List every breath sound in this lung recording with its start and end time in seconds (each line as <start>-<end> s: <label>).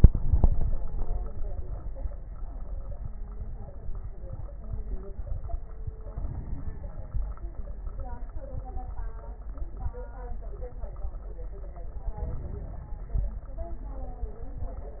6.08-7.42 s: inhalation
6.08-7.42 s: crackles
12.16-13.18 s: inhalation
12.16-13.18 s: crackles